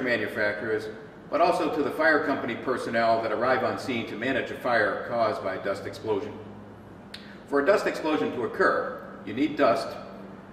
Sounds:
speech

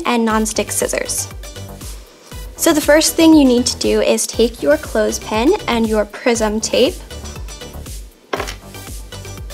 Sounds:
music
speech

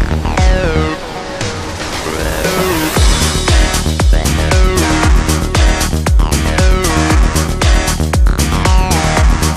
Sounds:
music
trance music

